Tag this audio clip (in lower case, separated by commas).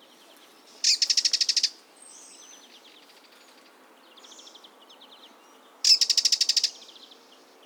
animal, bird, wild animals